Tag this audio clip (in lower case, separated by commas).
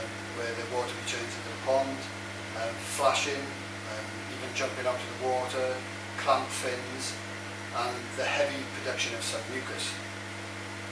speech